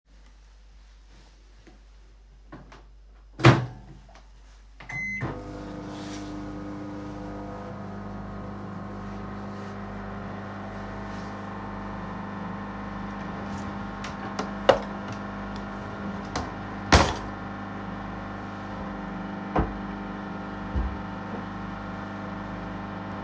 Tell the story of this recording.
The recording device was static on the kitchen counter. I started the microwave for a short cycle and opened a nearby drawer to grab a snack.